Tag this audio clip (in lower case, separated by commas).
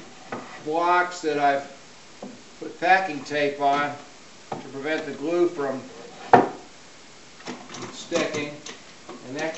speech, wood, inside a small room